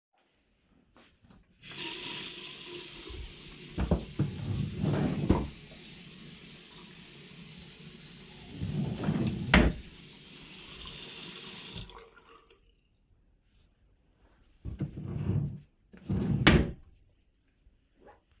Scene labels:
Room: bathroom; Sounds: running water, wardrobe or drawer (more than once)

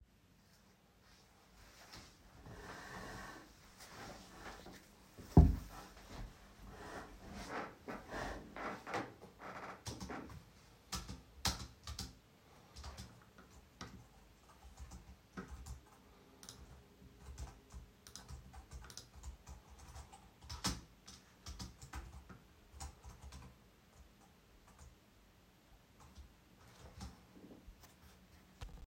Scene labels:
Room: office; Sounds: keyboard typing

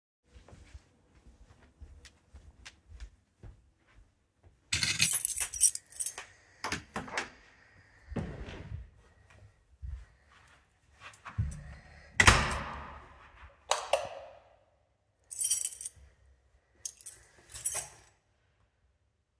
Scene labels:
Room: hallway; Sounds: footsteps, keys, door (more than once), light switch

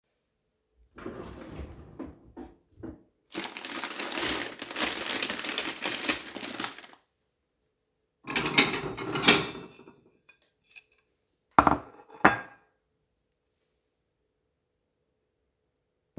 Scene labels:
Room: kitchen; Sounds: wardrobe or drawer, cutlery and dishes

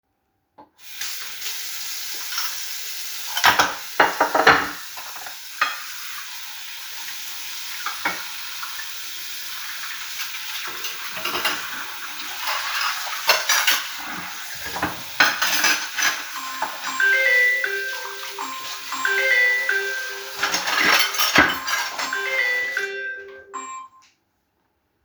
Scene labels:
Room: kitchen; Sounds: running water, cutlery and dishes, phone ringing

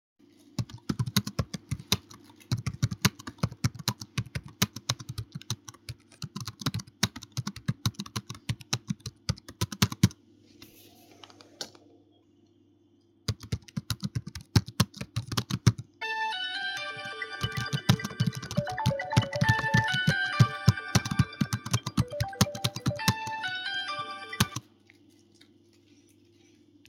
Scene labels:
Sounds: keyboard typing, light switch, phone ringing

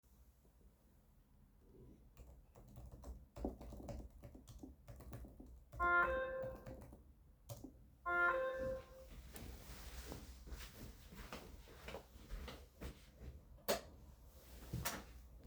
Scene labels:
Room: bedroom; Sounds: keyboard typing, phone ringing, footsteps, door

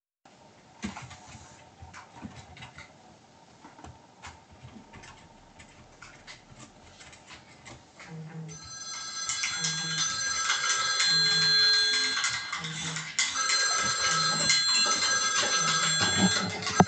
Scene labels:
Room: living room; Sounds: keyboard typing, phone ringing, cutlery and dishes

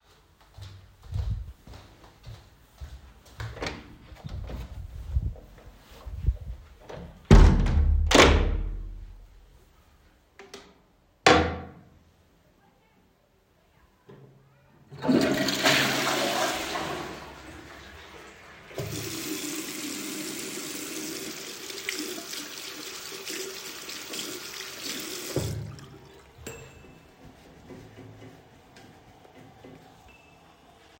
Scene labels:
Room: bathroom; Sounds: footsteps, door (more than once), toilet flushing, running water

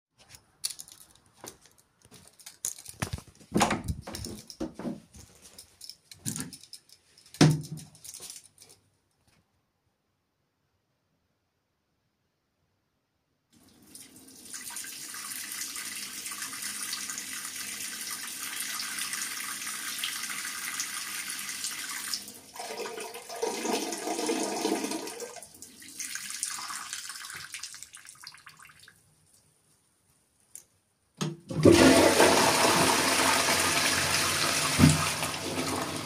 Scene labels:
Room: lavatory; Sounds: footsteps, running water, toilet flushing

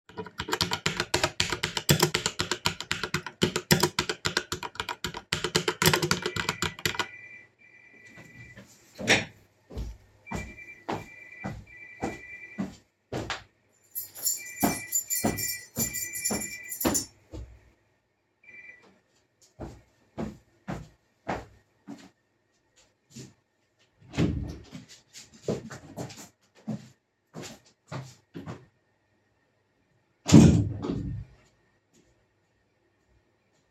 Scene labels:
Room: bedroom, living room; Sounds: keyboard typing, phone ringing, footsteps, keys, door (more than once)

